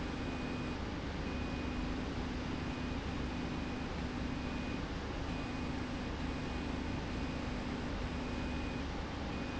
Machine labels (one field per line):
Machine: slide rail